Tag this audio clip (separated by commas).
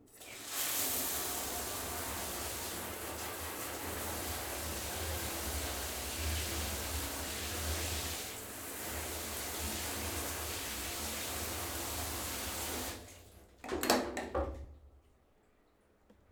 Bathtub (filling or washing), Domestic sounds